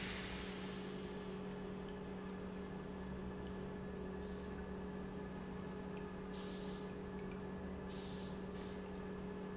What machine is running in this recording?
pump